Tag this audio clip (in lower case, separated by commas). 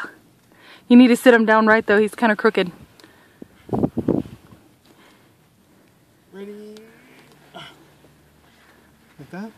speech